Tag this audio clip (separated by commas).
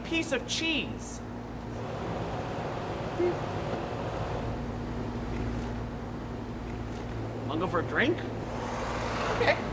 Speech